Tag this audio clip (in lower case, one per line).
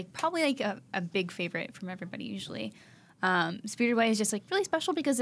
speech